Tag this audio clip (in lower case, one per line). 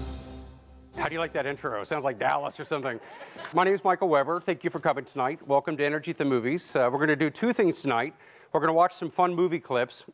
music
speech